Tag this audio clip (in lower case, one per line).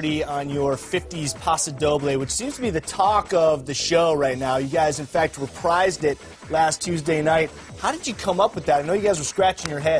music
speech